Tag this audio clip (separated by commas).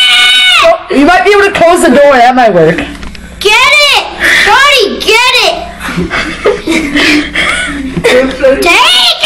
Screaming